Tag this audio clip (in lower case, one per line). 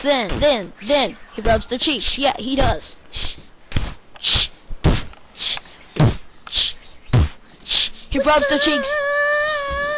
speech